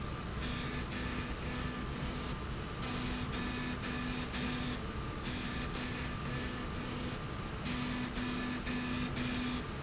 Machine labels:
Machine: slide rail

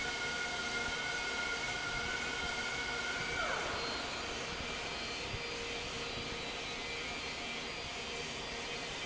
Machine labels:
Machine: fan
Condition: normal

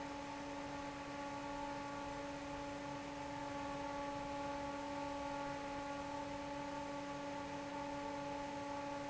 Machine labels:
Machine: fan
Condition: normal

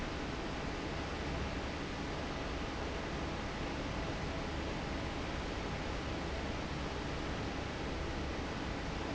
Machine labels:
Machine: fan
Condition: normal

